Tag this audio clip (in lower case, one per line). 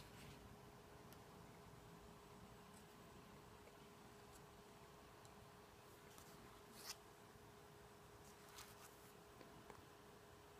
inside a small room